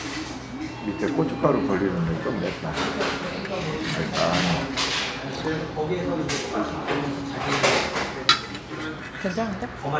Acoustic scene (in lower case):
crowded indoor space